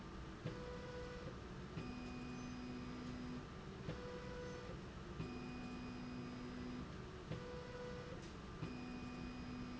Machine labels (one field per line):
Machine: slide rail